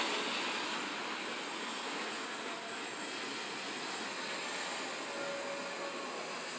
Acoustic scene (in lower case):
residential area